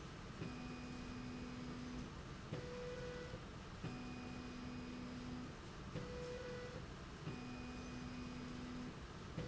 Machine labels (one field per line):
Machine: slide rail